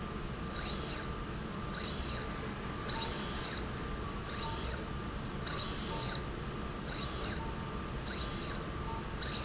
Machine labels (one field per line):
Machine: slide rail